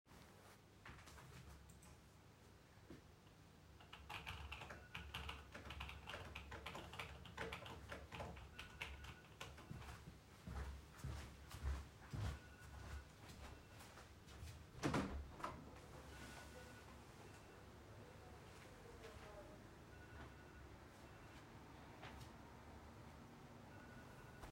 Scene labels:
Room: bedroom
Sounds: keyboard typing, phone ringing, footsteps, window

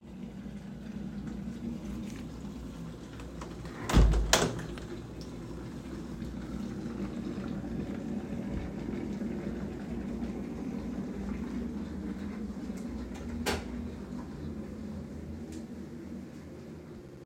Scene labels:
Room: bedroom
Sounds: microwave, window, light switch

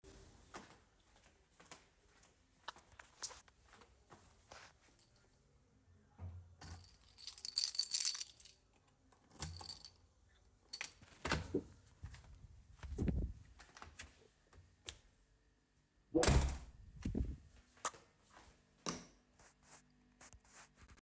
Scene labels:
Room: hallway, bedroom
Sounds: footsteps, keys, door (more than once)

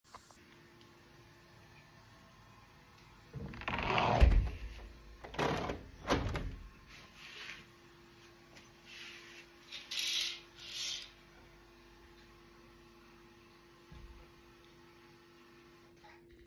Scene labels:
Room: kitchen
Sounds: running water, window

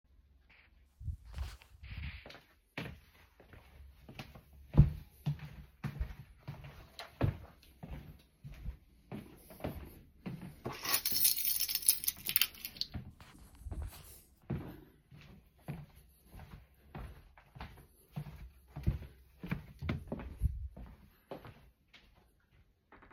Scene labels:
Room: living room, hallway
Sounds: footsteps, keys

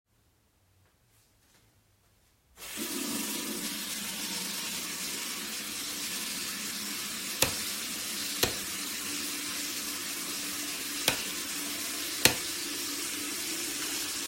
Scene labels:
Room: kitchen, bathroom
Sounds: running water, light switch

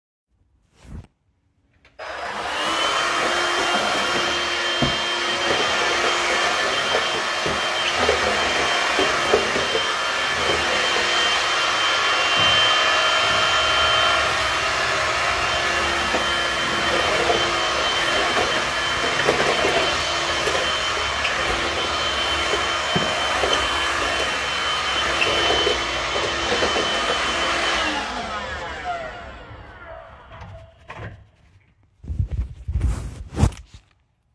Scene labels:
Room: living room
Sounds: vacuum cleaner

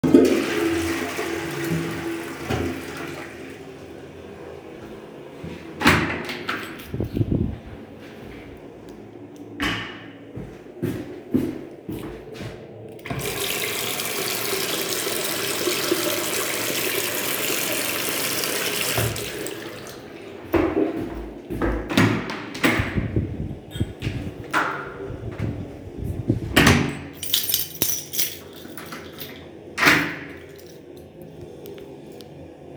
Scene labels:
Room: lavatory, bathroom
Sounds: toilet flushing, door (more than once), footsteps, running water, keys

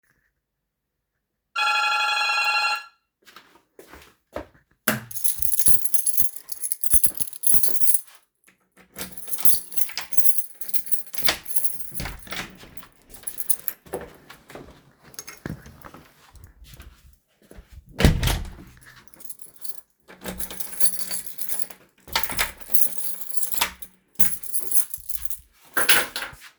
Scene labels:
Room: hallway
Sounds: bell ringing, footsteps, keys, door (more than once)

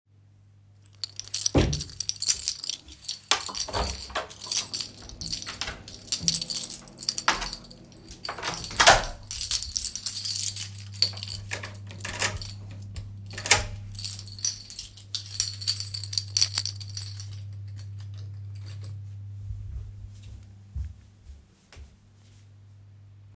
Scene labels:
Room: bedroom, hallway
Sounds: keys, footsteps, door (more than once)

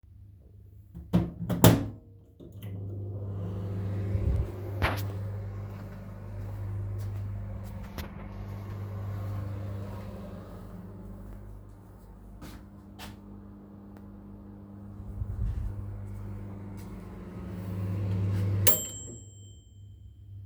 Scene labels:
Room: kitchen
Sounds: microwave, footsteps

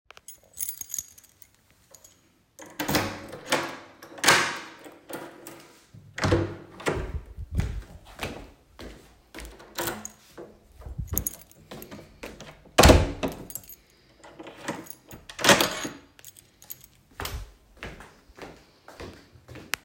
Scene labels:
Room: hallway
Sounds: keys, door (more than once), footsteps

